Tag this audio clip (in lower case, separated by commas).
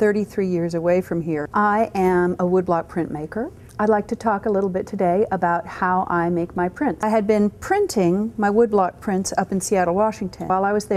speech